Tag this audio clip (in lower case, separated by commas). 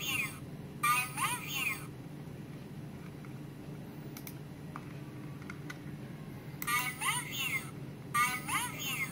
speech